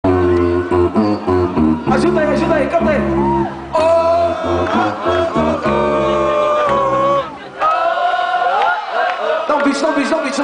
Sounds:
Beatboxing, Speech, Crowd

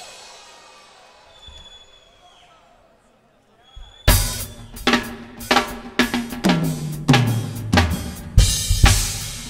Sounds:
Musical instrument, Music

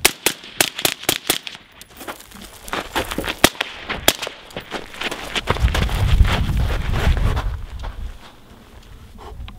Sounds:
outside, rural or natural

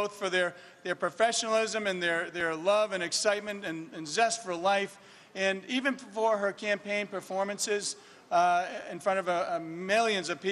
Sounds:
Narration, Speech, man speaking

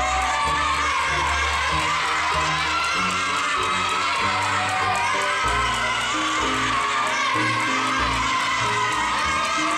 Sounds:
rope skipping

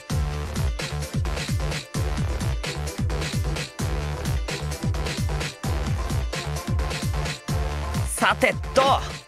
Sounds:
Speech, Music

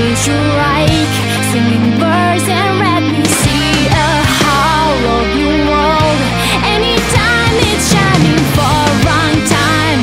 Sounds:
Music

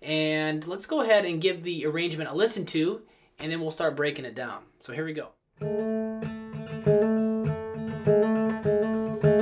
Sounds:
Speech, Music

